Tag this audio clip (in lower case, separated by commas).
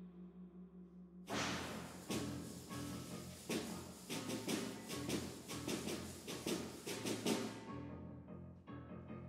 music, percussion